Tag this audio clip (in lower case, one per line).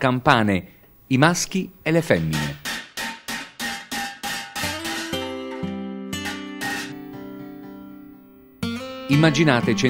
speech
music